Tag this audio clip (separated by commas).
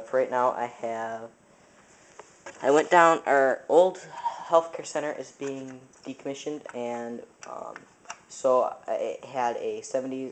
Speech